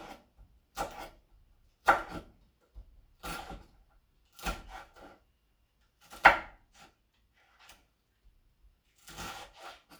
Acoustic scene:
kitchen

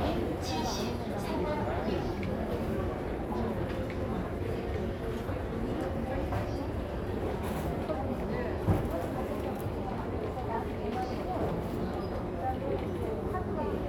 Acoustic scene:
crowded indoor space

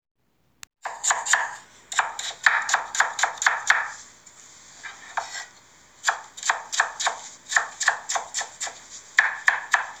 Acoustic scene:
kitchen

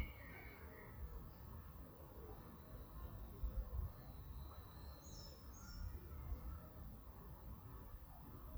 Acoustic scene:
park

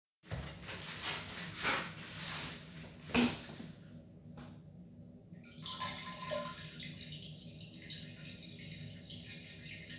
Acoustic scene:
restroom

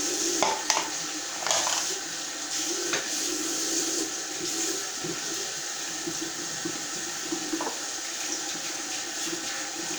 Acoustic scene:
restroom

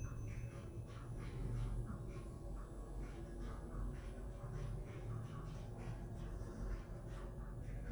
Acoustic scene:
elevator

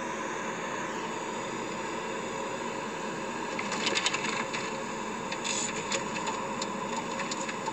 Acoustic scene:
car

